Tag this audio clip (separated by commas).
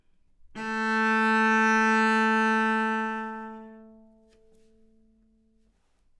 Music, Musical instrument, Bowed string instrument